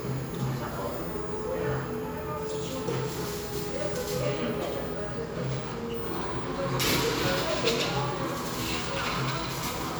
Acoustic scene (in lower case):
cafe